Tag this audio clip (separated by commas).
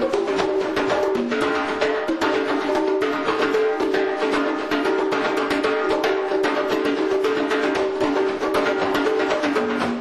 Music, Percussion